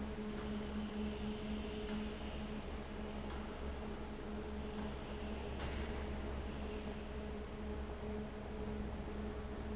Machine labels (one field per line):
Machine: fan